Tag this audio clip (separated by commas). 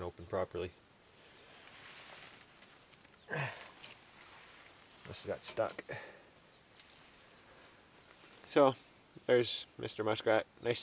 Speech, outside, rural or natural